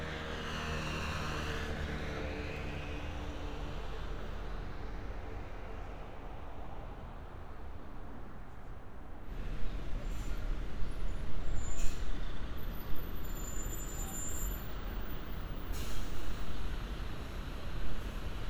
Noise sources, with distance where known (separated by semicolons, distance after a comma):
large-sounding engine, near